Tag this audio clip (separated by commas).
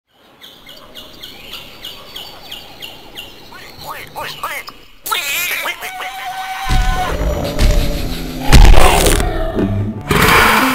bird call, Bird, tweet